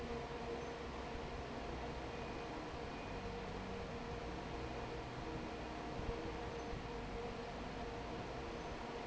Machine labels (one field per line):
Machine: fan